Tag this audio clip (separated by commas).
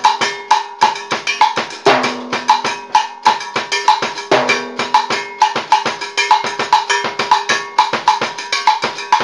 playing timbales